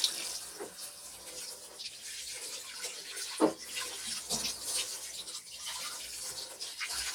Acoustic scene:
kitchen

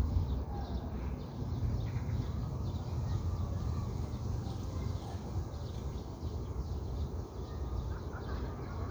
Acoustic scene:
park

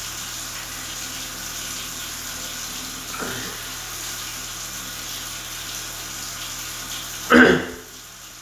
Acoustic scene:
restroom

